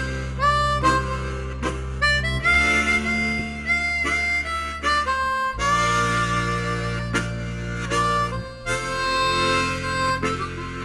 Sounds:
Music, Harmonica

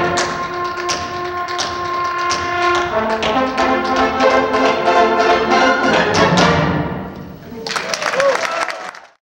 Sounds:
tap dancing

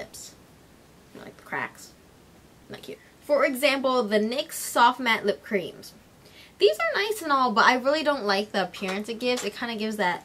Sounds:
inside a small room, Speech

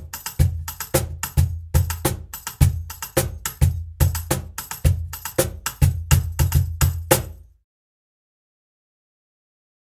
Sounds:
Music

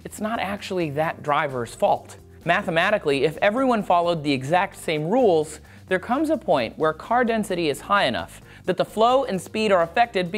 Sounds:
Music, Speech

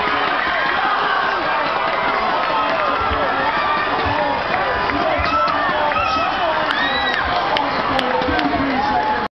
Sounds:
outside, urban or man-made, man speaking, Speech, Run

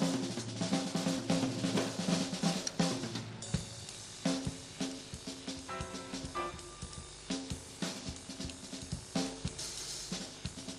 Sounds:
Piano, Music, Musical instrument, Drum

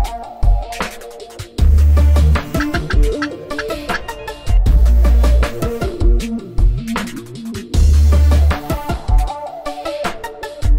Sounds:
Music

